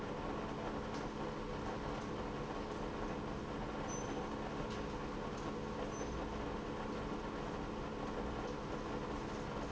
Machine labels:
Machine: pump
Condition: abnormal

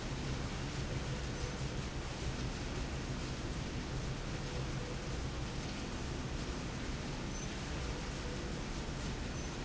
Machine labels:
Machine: slide rail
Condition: normal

